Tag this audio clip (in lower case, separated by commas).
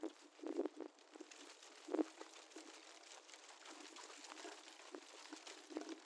wind